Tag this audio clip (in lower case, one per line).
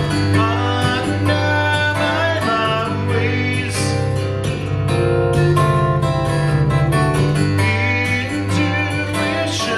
music
guitar
musical instrument
acoustic guitar